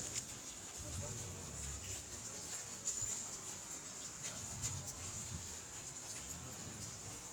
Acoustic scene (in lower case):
residential area